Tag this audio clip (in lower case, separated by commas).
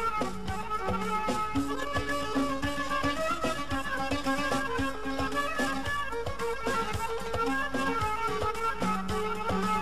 music